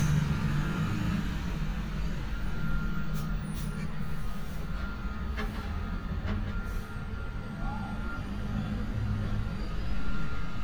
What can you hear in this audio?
unidentified alert signal